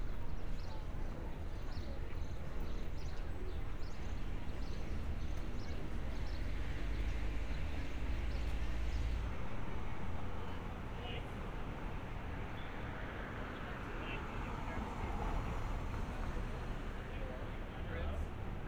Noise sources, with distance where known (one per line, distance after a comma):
engine of unclear size
person or small group talking